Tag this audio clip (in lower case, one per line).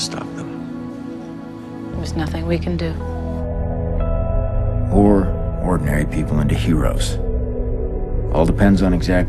music
speech